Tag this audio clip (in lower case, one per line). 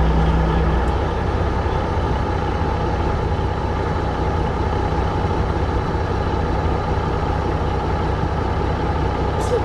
vehicle